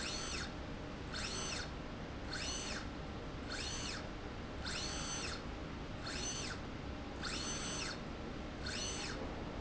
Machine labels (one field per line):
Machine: slide rail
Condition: normal